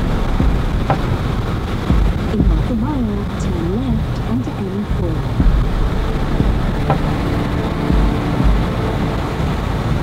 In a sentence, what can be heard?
A woman speaks while thunder rolls in the background